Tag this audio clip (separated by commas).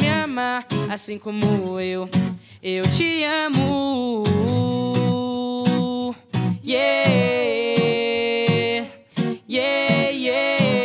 people humming